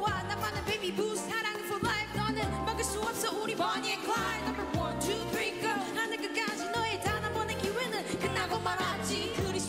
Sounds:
Music

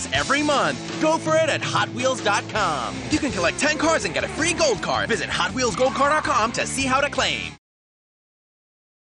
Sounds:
Speech, Music

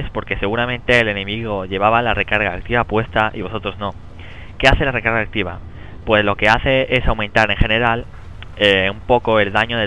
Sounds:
Speech

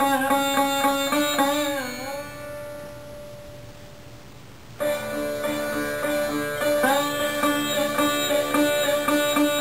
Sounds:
Carnatic music, Sitar, Musical instrument, Plucked string instrument, Bowed string instrument, Music

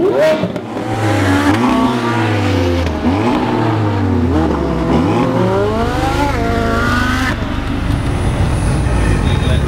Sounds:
Vehicle, Car, Race car

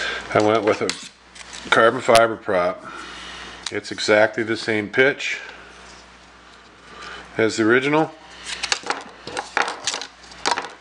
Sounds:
inside a small room, Speech

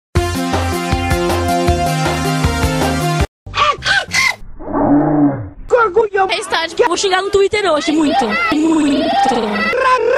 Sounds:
Music, Speech

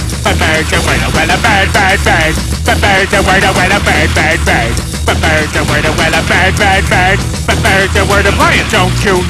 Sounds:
Music

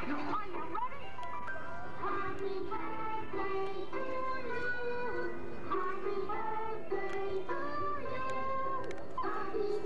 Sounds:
Music, Speech

